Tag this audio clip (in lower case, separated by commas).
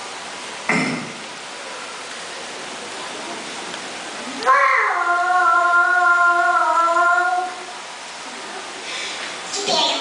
speech